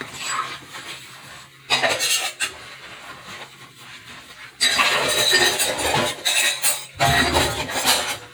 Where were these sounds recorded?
in a kitchen